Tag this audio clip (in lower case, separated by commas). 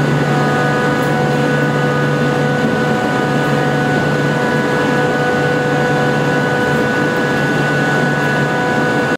vehicle